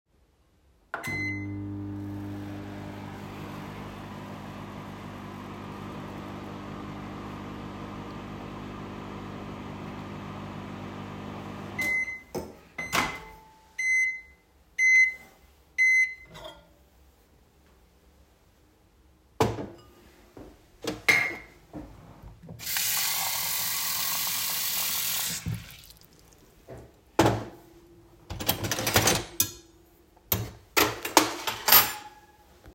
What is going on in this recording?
My food was warming up, i got it out of the microwave, put the plate on a table. Then I got myself water from the sink, put the glass on the table as well. Afterwards got the cutlery to eat